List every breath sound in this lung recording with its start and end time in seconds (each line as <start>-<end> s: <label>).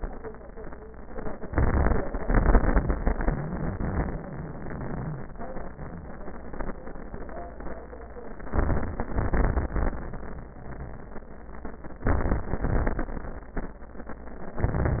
1.41-2.25 s: inhalation
1.41-2.25 s: crackles
2.27-5.30 s: exhalation
2.27-5.30 s: crackles
8.50-9.10 s: inhalation
8.50-9.10 s: crackles
9.10-10.01 s: exhalation
9.10-10.01 s: crackles
12.07-12.61 s: inhalation
12.07-12.61 s: crackles
12.62-13.21 s: exhalation
12.62-13.21 s: crackles
14.57-15.00 s: inhalation
14.57-15.00 s: crackles